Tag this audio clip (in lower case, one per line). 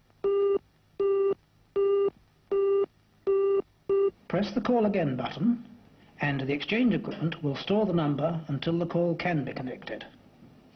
speech